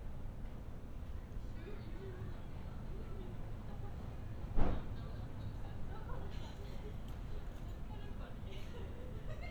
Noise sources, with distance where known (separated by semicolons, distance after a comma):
person or small group talking, far